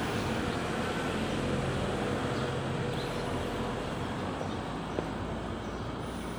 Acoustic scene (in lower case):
residential area